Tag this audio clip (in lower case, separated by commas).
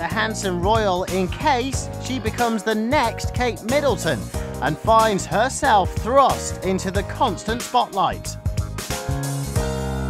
speech, music